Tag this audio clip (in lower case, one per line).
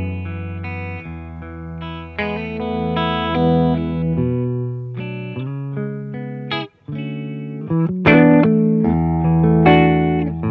guitar
distortion
effects unit
musical instrument
plucked string instrument
music